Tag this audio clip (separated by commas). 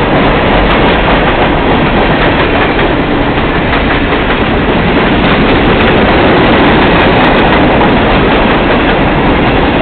Train, Vehicle, Rail transport